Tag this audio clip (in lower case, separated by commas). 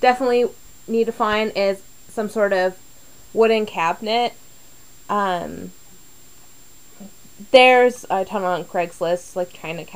speech